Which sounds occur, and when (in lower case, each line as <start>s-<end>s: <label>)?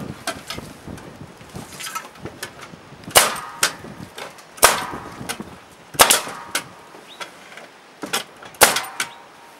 0.0s-9.5s: wind
0.2s-1.1s: generic impact sounds
0.4s-0.6s: bird vocalization
1.4s-2.6s: generic impact sounds
3.0s-4.3s: generic impact sounds
4.6s-5.5s: generic impact sounds
5.9s-6.7s: generic impact sounds
7.0s-7.2s: bird vocalization
7.1s-7.6s: generic impact sounds
8.0s-9.2s: generic impact sounds
9.0s-9.2s: bird vocalization